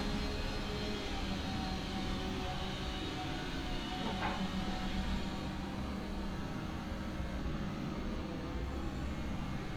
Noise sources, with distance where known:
small or medium rotating saw, far

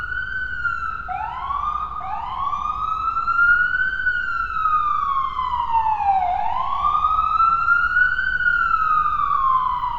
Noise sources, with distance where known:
siren, near

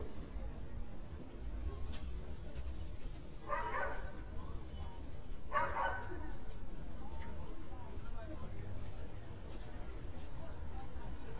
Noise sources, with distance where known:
dog barking or whining, near

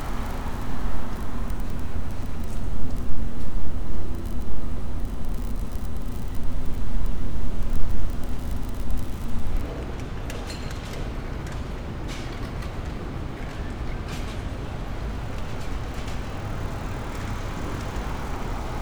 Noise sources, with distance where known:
engine of unclear size, near

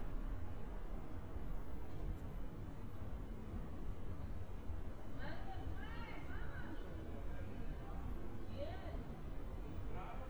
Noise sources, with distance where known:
person or small group talking

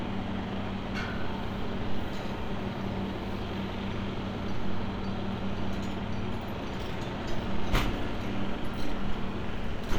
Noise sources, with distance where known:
engine of unclear size, near

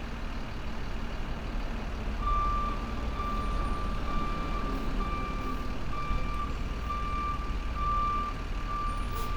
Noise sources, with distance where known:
large-sounding engine, near

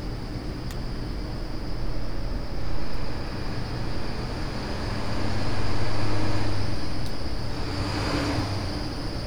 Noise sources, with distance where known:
large-sounding engine

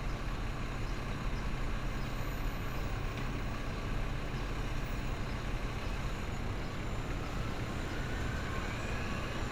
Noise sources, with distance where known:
large-sounding engine, near

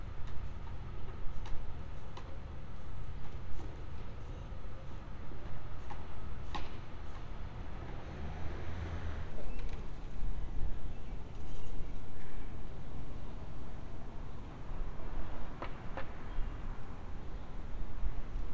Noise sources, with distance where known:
background noise

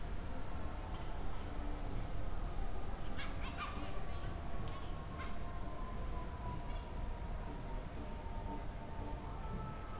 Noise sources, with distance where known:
siren

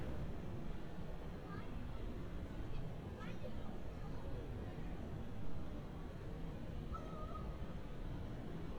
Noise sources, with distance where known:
background noise

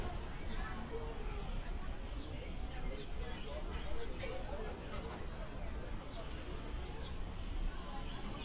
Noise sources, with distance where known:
person or small group talking, far

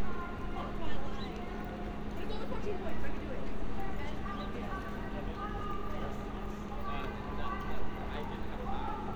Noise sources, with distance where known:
person or small group talking, near
large crowd, far
amplified speech, far

